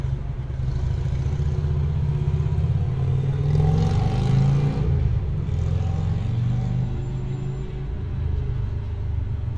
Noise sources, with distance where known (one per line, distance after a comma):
medium-sounding engine, near